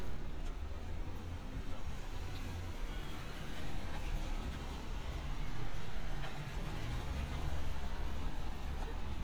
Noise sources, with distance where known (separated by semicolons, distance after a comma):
engine of unclear size, far